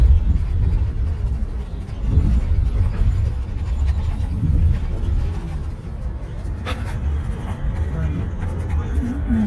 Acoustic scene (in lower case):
bus